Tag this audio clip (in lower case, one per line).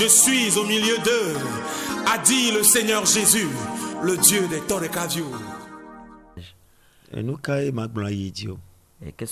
music
speech